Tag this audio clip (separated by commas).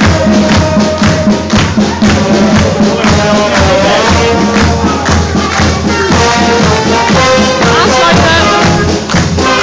Speech, Music